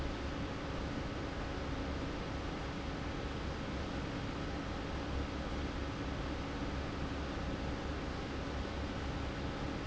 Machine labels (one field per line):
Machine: fan